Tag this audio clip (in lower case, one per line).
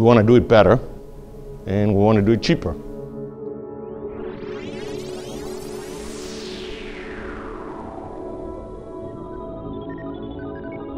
music
speech